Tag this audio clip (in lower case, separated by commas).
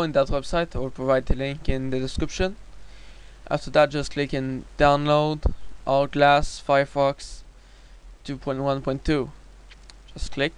speech